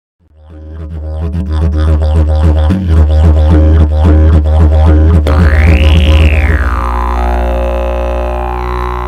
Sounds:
Musical instrument, Music, Didgeridoo

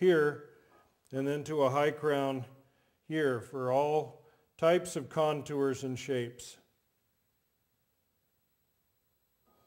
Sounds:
Speech

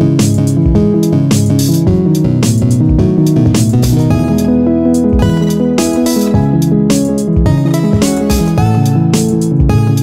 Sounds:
Video game music, Independent music, Music

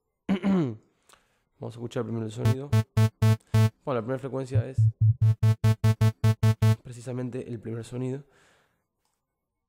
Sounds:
Speech, Musical instrument, Synthesizer, Music

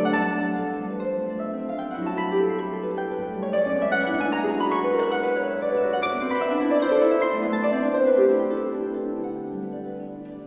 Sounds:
playing harp

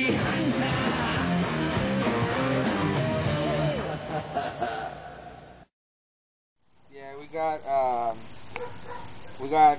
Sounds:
Bow-wow, Dog, pets, Animal, Music, Speech

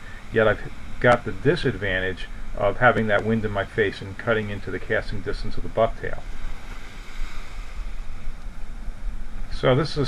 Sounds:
Ocean, surf

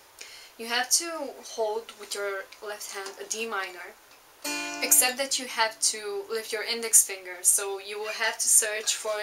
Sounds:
Musical instrument, Speech, Plucked string instrument, Guitar, Music

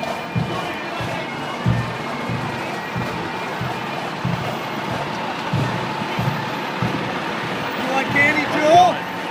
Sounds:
Speech, Bagpipes, Music

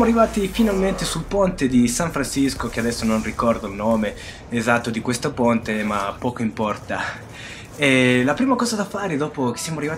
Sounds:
Speech

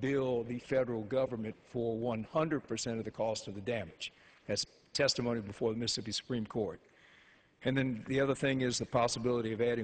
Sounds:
Speech

